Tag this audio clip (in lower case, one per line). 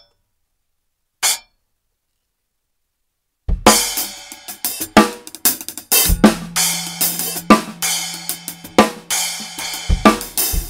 drum kit
drum
musical instrument
music